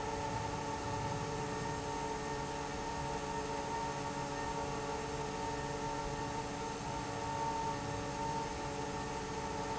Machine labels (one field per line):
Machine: fan